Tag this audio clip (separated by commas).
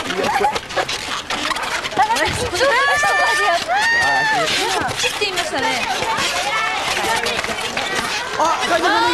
Speech